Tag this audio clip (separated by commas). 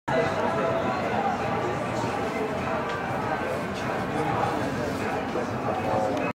Speech